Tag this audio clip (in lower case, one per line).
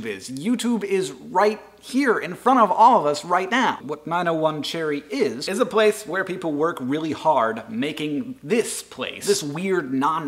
speech